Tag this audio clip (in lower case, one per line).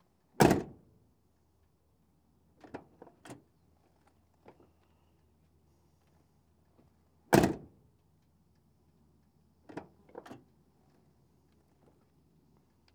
vehicle
motor vehicle (road)